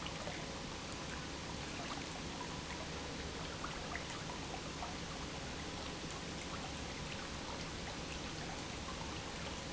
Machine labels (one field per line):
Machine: pump